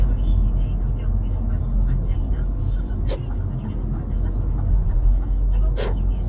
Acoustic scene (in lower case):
car